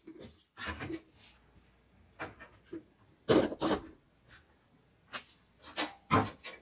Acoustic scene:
kitchen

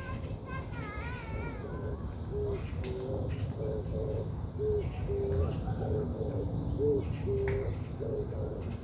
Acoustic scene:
park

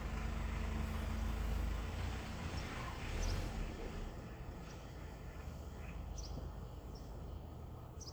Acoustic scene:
residential area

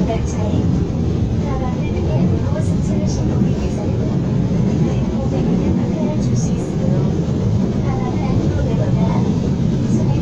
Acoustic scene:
subway train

